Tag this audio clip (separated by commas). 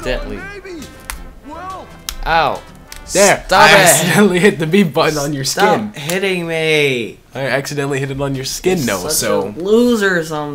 Speech, Music